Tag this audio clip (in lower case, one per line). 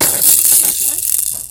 musical instrument
rattle (instrument)
music
rattle
percussion